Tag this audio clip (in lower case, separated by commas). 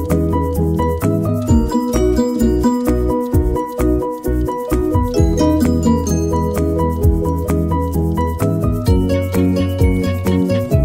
music